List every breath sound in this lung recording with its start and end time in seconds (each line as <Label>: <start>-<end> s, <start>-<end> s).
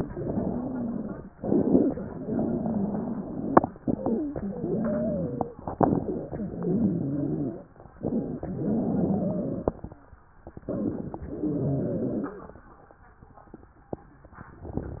Inhalation: 0.09-1.27 s, 1.37-2.24 s, 3.77-4.38 s, 5.69-6.43 s, 7.97-8.56 s, 10.68-11.27 s
Exhalation: 2.26-3.61 s, 4.38-5.54 s, 6.43-7.72 s, 8.56-9.81 s, 11.27-12.39 s
Wheeze: 0.09-1.27 s, 1.37-2.24 s, 2.26-3.61 s, 4.38-5.54 s, 6.43-7.72 s, 6.43-7.72 s, 8.56-9.81 s, 11.27-12.39 s